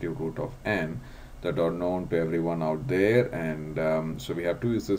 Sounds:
Speech

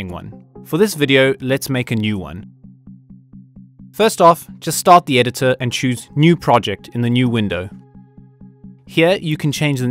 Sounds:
Speech, Music

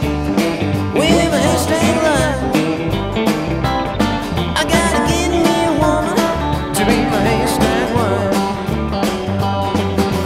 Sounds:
Acoustic guitar, playing acoustic guitar, Musical instrument, Guitar, Plucked string instrument, Strum, Music

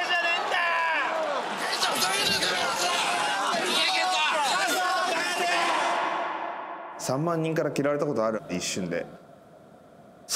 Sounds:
people booing

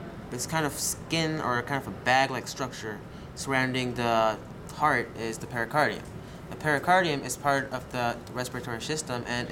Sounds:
Speech

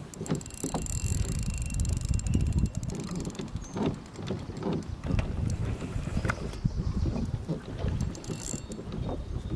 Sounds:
canoe, Wind, kayak, Water vehicle, Wind noise (microphone)

